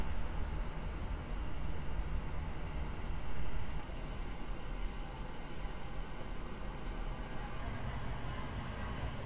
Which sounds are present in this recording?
large-sounding engine